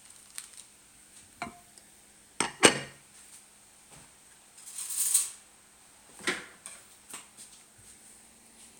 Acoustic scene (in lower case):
kitchen